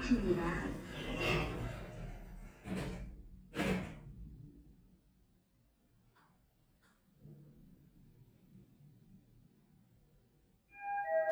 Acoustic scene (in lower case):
elevator